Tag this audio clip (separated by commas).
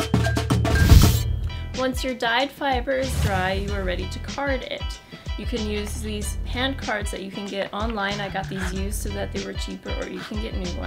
Speech, Music